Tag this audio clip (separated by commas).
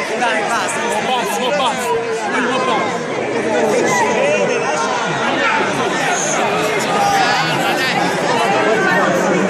Speech